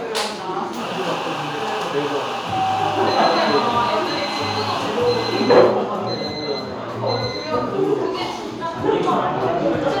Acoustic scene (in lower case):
cafe